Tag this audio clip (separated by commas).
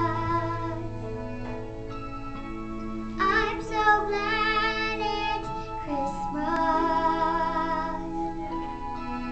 child singing